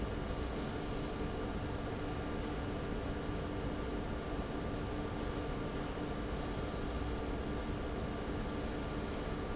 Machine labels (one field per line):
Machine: fan